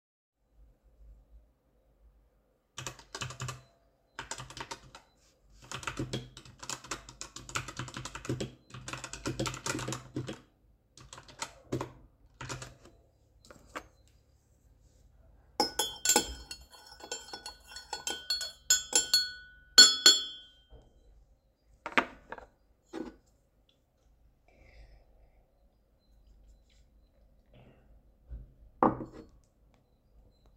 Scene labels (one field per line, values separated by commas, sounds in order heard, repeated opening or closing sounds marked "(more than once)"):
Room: kitchen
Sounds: keyboard typing, cutlery and dishes